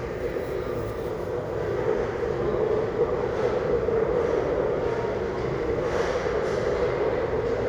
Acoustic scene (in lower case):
restaurant